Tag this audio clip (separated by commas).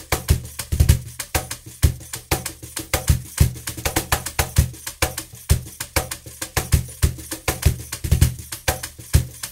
Music, Wood block